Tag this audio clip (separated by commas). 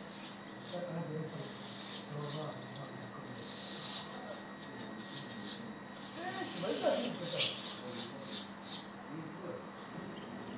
barn swallow calling